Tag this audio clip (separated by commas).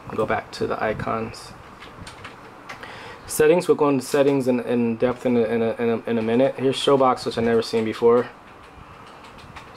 Speech